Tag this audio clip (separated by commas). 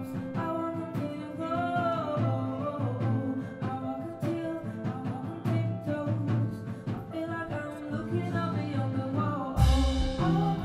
Music